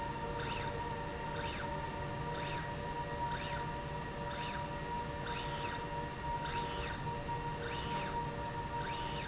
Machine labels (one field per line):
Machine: slide rail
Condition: normal